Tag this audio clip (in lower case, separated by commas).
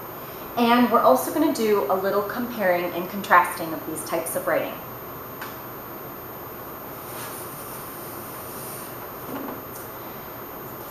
speech